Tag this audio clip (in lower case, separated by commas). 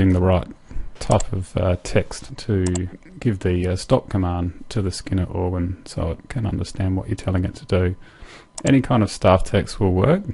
speech